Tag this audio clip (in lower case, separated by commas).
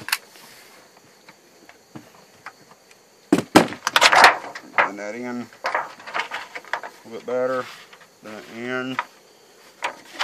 speech